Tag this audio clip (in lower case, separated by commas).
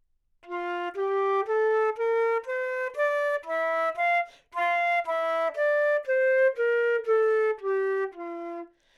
woodwind instrument, musical instrument, music